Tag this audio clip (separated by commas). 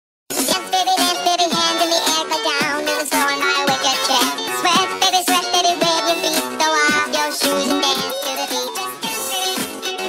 Music